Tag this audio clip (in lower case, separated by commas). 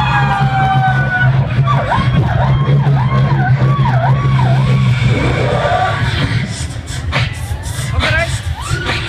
crowd, speech, beatboxing